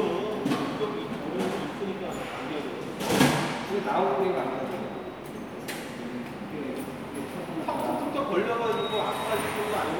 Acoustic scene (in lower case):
subway station